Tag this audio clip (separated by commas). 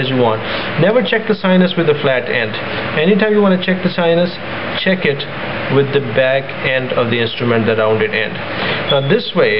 Speech, inside a small room